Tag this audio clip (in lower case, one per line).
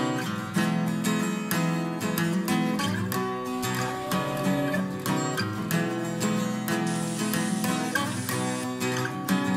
music